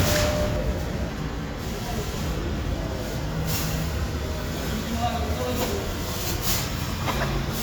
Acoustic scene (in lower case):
residential area